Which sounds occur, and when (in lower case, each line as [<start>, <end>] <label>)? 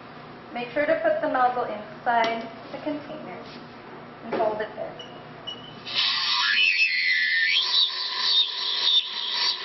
[0.00, 9.64] mechanisms
[0.48, 2.46] woman speaking
[2.17, 2.31] generic impact sounds
[2.64, 3.67] woman speaking
[3.29, 3.67] generic impact sounds
[4.23, 5.04] woman speaking
[4.28, 4.41] generic impact sounds
[4.91, 5.09] generic impact sounds
[5.40, 5.76] generic impact sounds
[5.81, 9.64] liquid